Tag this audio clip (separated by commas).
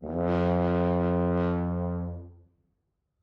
Music, Musical instrument, Brass instrument